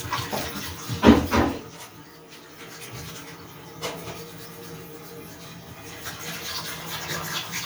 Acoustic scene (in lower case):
restroom